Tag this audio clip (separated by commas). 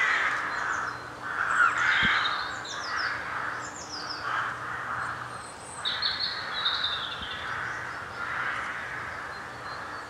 crow cawing